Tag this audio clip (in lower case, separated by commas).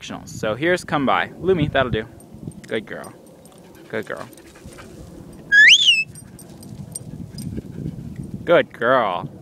speech